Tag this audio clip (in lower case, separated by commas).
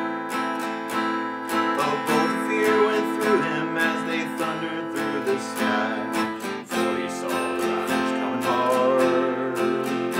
music, strum